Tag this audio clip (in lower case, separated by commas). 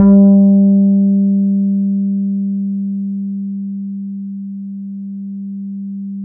musical instrument, guitar, plucked string instrument, music, bass guitar